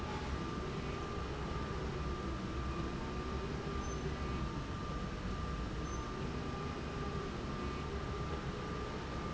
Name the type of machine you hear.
slide rail